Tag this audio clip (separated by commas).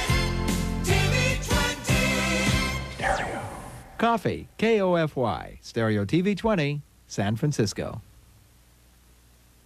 Speech, Music